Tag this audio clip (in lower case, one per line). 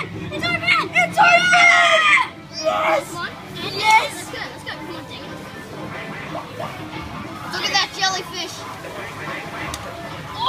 speech
kid speaking
music
children playing